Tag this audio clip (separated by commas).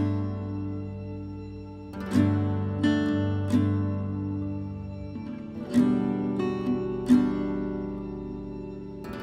Music